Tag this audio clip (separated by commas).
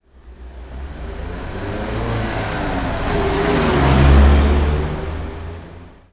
Motor vehicle (road), Vehicle, Car, Car passing by